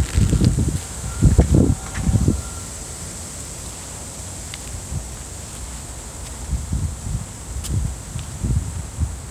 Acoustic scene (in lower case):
residential area